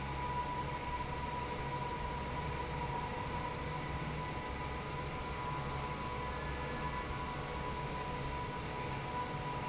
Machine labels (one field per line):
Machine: fan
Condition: normal